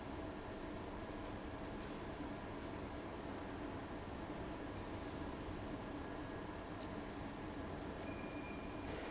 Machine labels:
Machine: fan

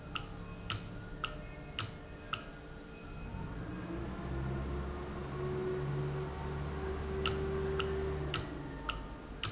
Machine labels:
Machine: valve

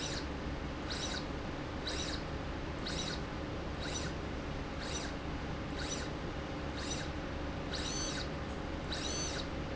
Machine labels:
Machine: slide rail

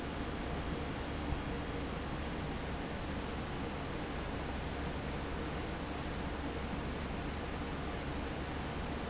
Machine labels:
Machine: fan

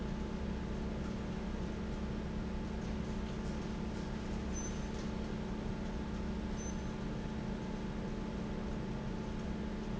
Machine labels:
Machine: fan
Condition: normal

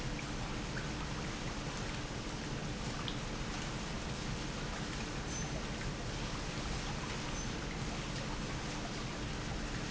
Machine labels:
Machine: pump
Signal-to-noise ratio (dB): -6 dB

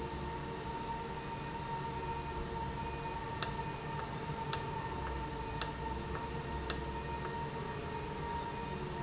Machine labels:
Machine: valve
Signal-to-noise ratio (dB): -6 dB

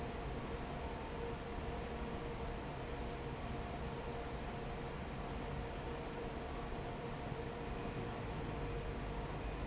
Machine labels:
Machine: fan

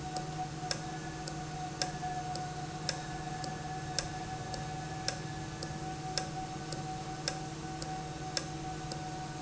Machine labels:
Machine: valve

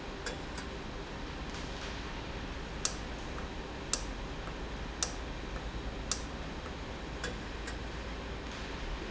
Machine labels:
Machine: valve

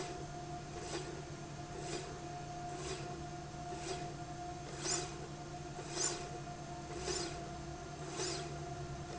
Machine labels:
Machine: slide rail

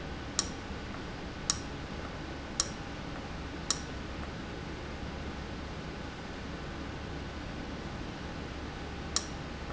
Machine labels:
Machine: valve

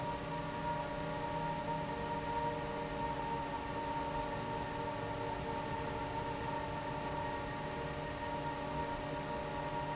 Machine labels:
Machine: fan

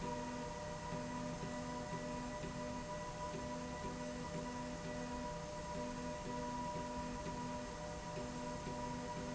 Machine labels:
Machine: slide rail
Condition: normal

